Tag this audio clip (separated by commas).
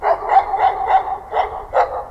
Bark, Dog, Animal, pets